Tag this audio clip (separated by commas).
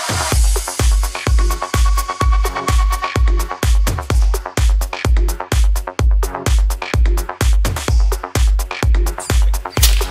Music